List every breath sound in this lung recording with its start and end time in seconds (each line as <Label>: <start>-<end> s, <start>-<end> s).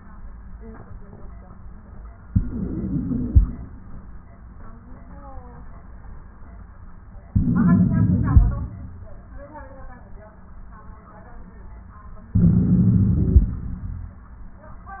Inhalation: 2.24-3.42 s, 7.30-8.47 s, 12.33-13.51 s
Wheeze: 2.24-3.42 s, 7.30-8.47 s, 12.33-13.51 s